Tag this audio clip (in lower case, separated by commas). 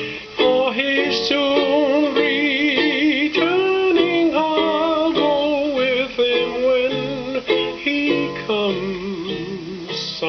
singing, music, ukulele